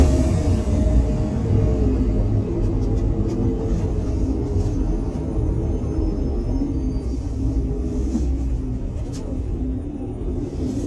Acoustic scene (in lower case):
bus